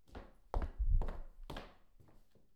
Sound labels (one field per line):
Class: footsteps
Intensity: medium